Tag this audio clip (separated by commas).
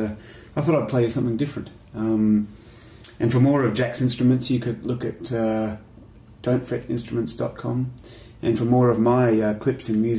Speech